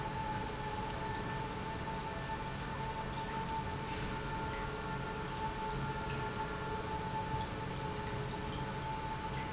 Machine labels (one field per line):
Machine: pump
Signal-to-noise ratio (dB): -6 dB